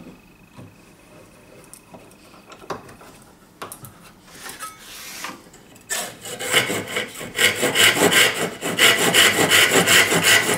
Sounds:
wood

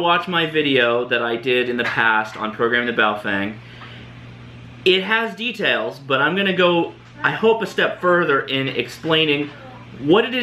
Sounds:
speech

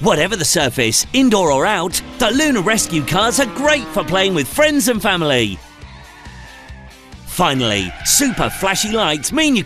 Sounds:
music
car
speech

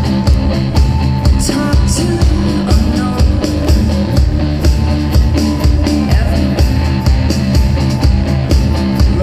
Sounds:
music

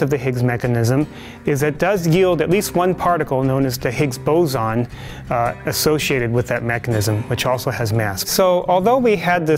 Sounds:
music
speech

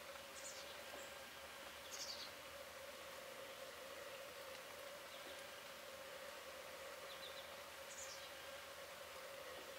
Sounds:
black capped chickadee calling

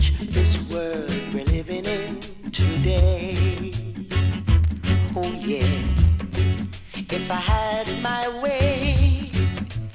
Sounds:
music

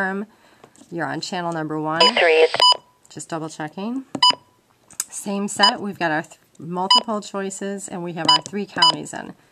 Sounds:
speech
inside a small room

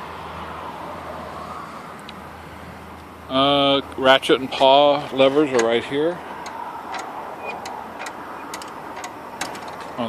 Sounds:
speech

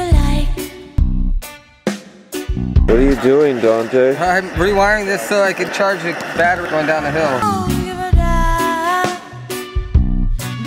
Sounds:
speech
music

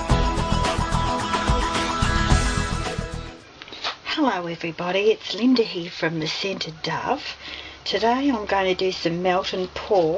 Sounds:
music
speech

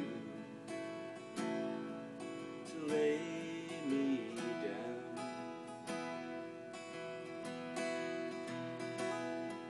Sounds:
musical instrument
guitar
plucked string instrument
music

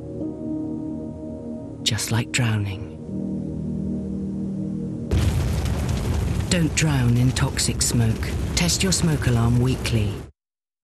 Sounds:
speech
crackle
music

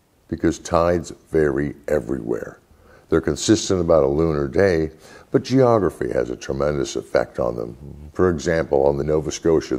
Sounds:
speech

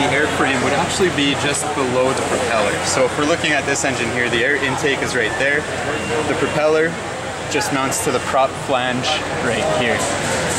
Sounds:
speech

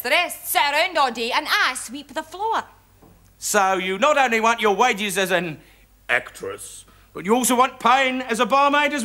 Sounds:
speech

